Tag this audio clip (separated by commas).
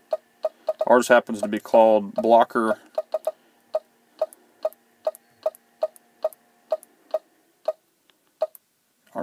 Speech, inside a small room